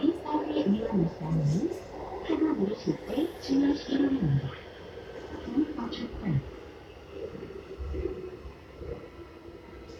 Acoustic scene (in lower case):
subway train